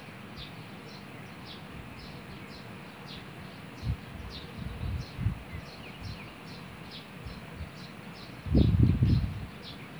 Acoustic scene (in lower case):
park